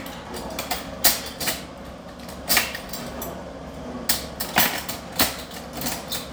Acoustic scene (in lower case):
restaurant